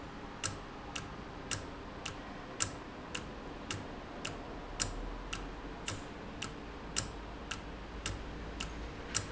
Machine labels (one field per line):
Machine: valve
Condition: normal